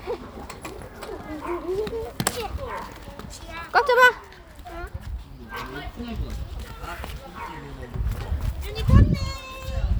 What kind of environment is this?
park